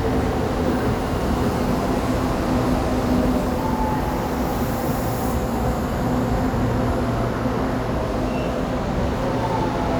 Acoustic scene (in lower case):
subway station